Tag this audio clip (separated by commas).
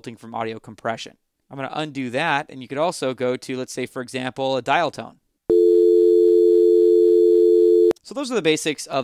Speech, Dial tone